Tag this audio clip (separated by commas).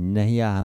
Speech, Human voice